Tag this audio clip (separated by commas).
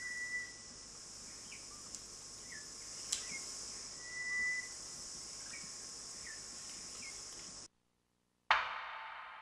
Bird, tweet, bird song